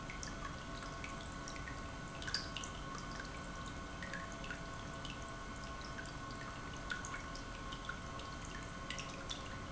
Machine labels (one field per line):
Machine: pump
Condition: normal